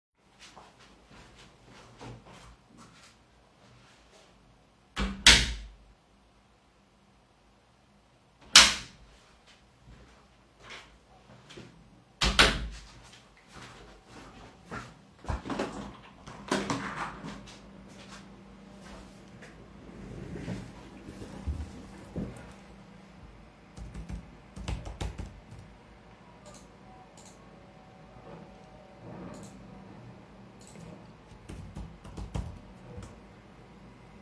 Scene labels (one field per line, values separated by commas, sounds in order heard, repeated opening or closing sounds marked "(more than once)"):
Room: living room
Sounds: footsteps, door (more than once), window, keyboard typing